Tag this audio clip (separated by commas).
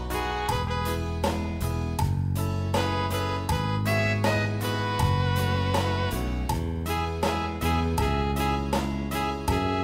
Music, Soul music, Independent music